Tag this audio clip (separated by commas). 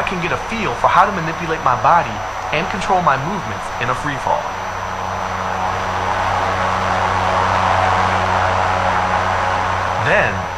Speech